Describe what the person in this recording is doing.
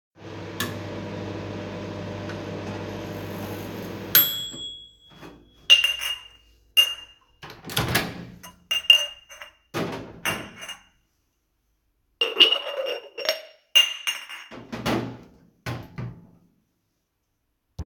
The phone is placed on the kitchen table. I opened the microwave and used its buttons which produce a beep. While standing in the kitchen I also handled some dishes and cutlery.